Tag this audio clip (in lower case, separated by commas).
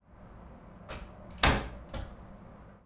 door, slam, domestic sounds